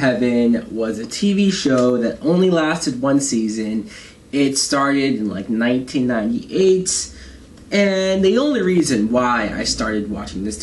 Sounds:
Speech

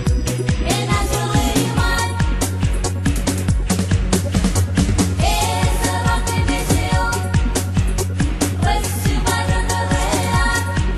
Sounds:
Music

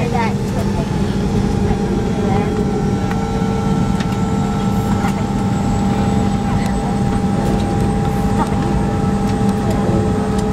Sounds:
Heavy engine (low frequency), Speech, Aircraft, Vehicle

